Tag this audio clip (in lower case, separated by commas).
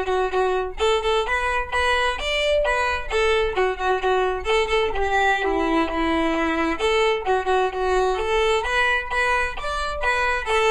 violin, music, musical instrument